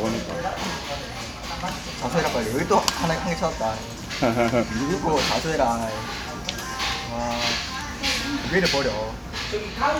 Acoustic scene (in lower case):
restaurant